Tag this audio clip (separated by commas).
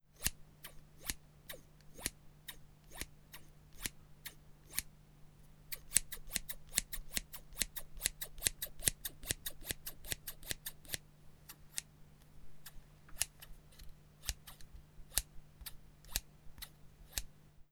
Scissors, home sounds